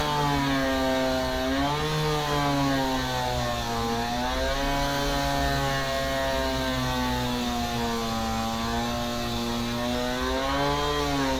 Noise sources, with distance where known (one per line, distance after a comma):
chainsaw, near